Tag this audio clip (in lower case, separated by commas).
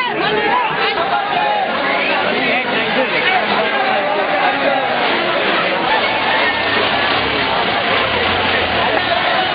man speaking, speech